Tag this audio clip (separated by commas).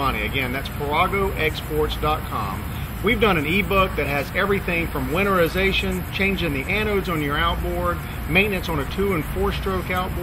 Speech